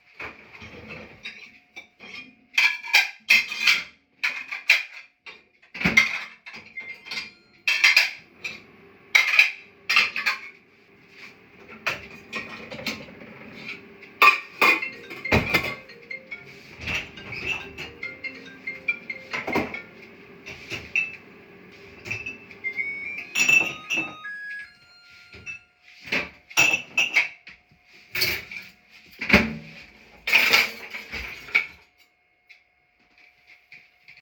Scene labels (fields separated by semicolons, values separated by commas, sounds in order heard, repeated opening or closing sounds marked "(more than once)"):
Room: kitchen; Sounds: cutlery and dishes, microwave, phone ringing